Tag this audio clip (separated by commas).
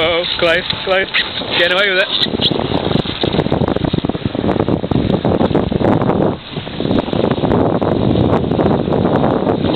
Speech